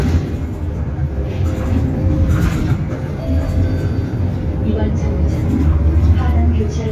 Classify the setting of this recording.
bus